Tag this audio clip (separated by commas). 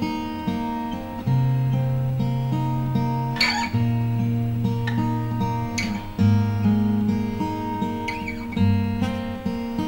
Guitar, Musical instrument, Acoustic guitar, Music, Strum, Plucked string instrument, playing acoustic guitar